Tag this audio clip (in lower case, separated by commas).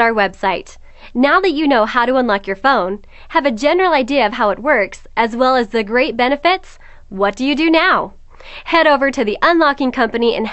narration